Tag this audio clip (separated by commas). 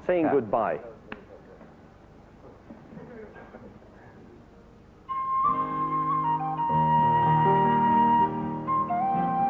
Music, Speech